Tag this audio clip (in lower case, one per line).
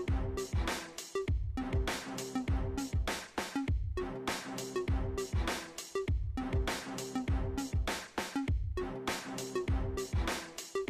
music